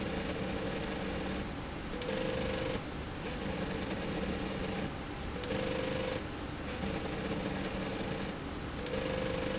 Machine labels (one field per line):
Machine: slide rail